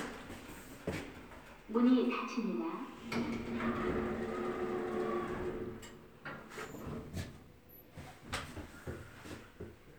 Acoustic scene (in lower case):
elevator